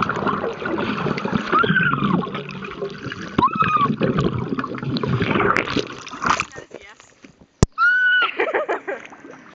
Water splashing and a yell from under water